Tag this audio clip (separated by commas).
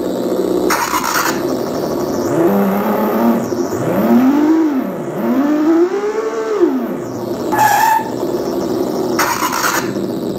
Car